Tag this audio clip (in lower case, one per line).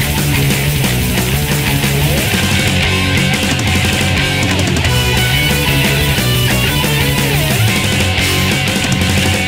music
theme music